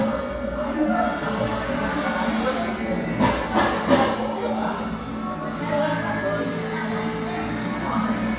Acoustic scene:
crowded indoor space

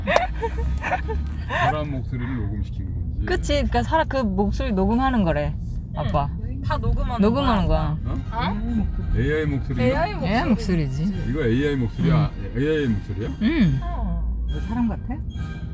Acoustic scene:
car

